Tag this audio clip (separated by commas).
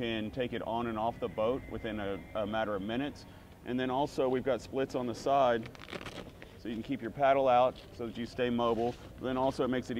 Speech